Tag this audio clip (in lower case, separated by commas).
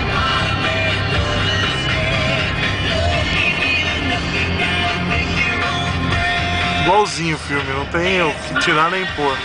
vehicle, speech, car, music